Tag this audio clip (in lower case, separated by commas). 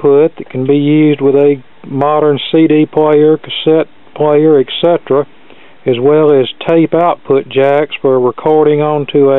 speech